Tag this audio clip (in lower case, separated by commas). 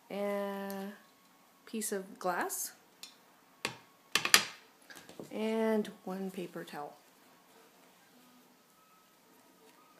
speech